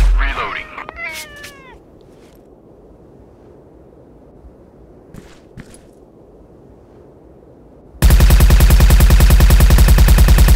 An adult male speaks, a cat meows, thumps, then gunfire